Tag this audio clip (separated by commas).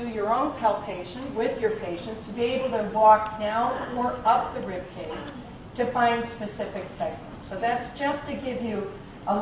Speech, Female speech